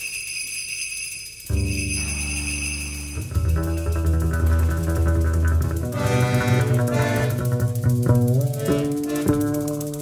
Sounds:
Jingle bell

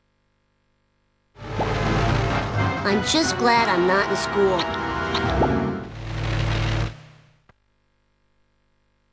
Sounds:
Speech, Music

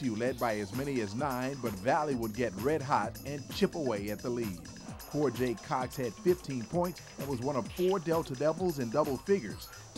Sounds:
Speech, Music

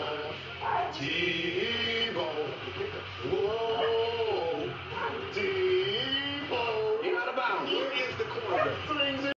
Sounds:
Speech

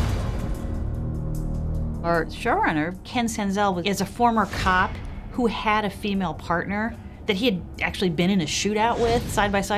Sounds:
Music, Speech, woman speaking

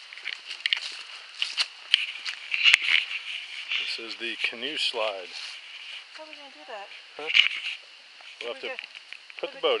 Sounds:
Speech

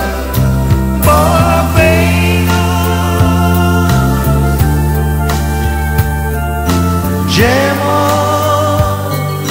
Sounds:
Music

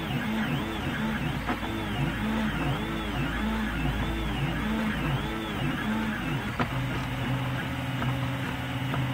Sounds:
Printer

